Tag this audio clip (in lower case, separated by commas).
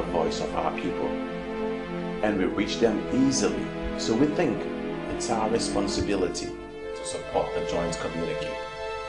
radio, speech, music